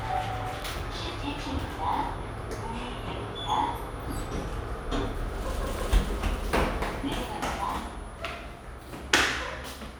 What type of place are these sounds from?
elevator